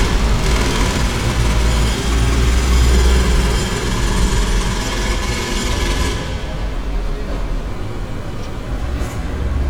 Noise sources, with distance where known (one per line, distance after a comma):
unidentified impact machinery, near